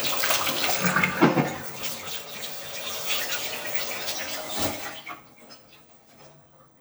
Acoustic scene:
kitchen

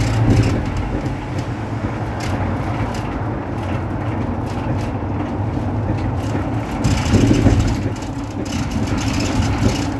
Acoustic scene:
bus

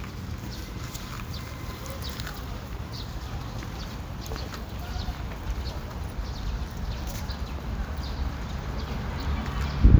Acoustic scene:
park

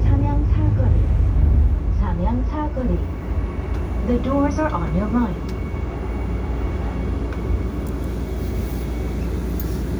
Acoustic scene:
subway train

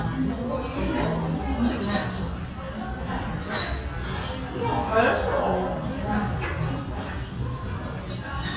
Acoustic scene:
restaurant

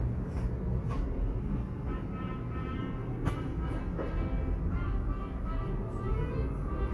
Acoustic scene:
subway station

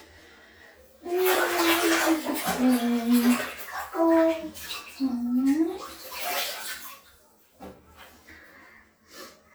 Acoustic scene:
restroom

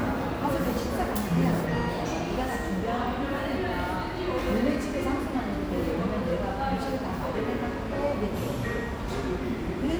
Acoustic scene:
cafe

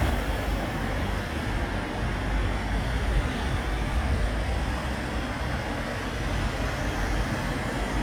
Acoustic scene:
street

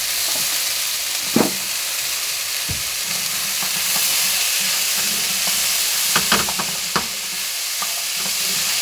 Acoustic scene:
kitchen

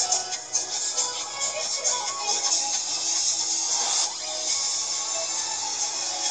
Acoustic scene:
car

